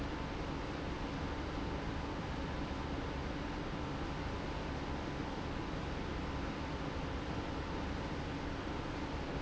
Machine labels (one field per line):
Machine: pump